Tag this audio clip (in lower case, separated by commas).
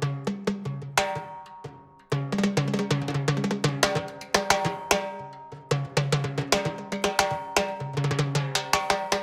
playing timbales